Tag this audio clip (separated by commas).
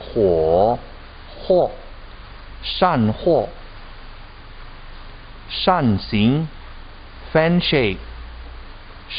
Speech